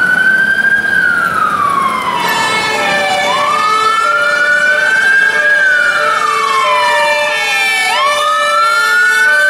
An emergency vehicle siren sounds loudly nearby